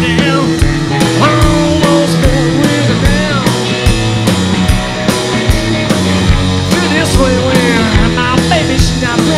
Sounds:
Music

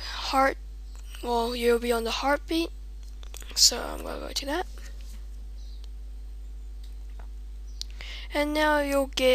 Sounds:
Speech

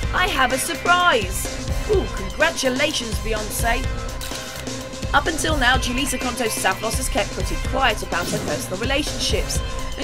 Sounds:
Speech, Music

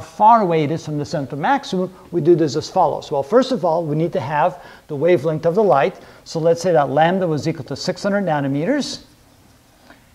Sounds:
Writing, Speech

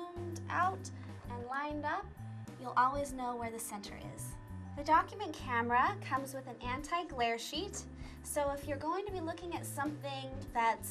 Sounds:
Music, Speech

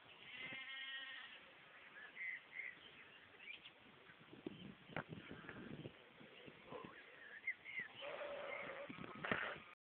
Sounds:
Sheep, Bleat

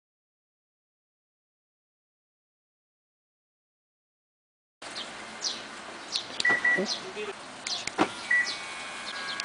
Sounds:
Silence, outside, rural or natural

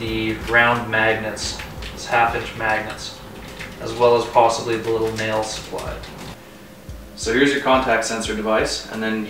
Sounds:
Speech

